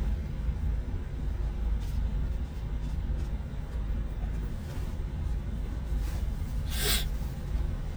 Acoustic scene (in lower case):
car